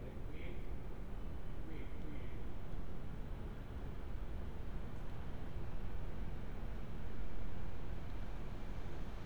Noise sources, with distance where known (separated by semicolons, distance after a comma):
person or small group talking, far